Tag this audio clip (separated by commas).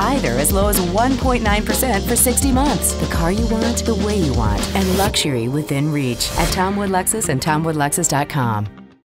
Music, Speech